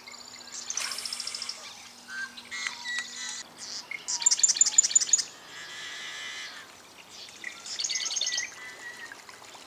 Birds are tweeting near a river stream